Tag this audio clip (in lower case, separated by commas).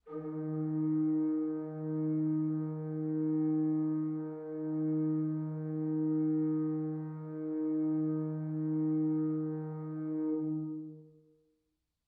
musical instrument, organ, keyboard (musical), music